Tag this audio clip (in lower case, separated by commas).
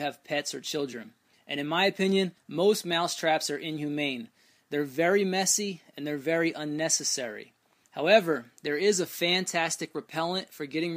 speech